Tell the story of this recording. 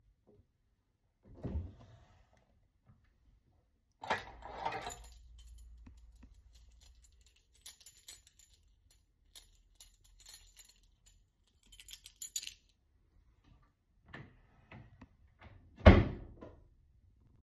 I opened a wardrobe drawer and searched inside. During the action I picked up a keychain and moved the keys. Finally, I closed the wardrobe drawer.